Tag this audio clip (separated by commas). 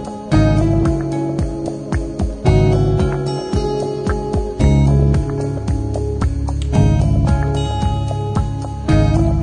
Music